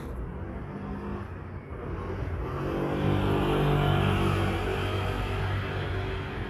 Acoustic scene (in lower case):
street